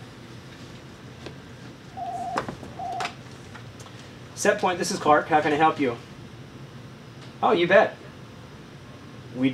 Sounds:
speech, inside a small room

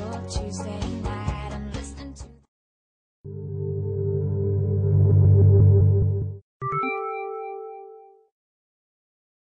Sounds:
music

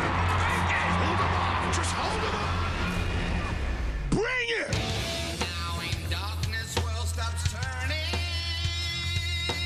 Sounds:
speech, music

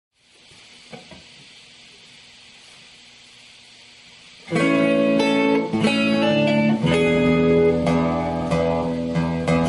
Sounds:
plucked string instrument, musical instrument, music, inside a small room, guitar

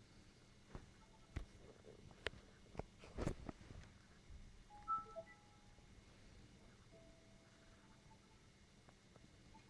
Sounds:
inside a small room

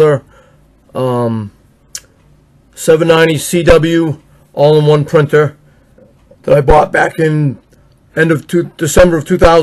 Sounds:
speech

